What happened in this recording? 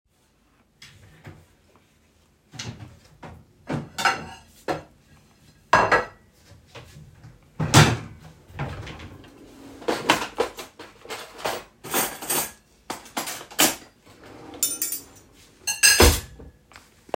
I open a drawer, take out a plate and place it down. Then I open another drawer and take out a fork and a knive and place it on the plate.